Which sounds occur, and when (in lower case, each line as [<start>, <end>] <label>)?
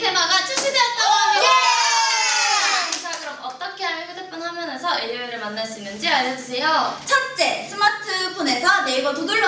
[0.00, 1.61] woman speaking
[0.50, 0.61] clapping
[0.92, 2.87] cheering
[2.85, 3.72] clapping
[2.87, 9.45] woman speaking